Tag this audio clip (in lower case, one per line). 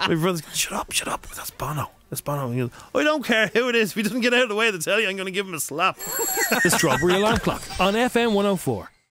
speech